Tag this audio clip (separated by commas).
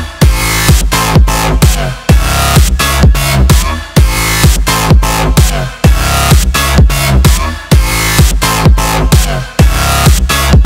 Music